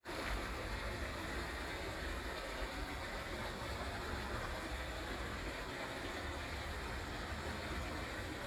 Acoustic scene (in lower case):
park